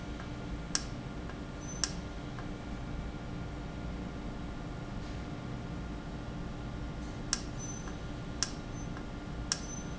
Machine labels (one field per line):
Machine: valve